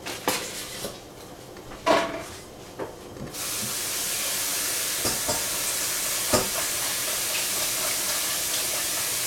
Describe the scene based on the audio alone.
Scraping and rattling followed by hissing